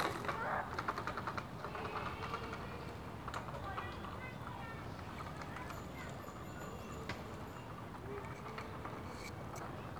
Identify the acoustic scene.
residential area